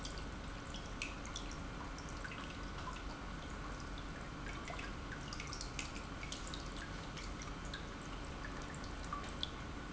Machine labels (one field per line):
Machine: pump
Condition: normal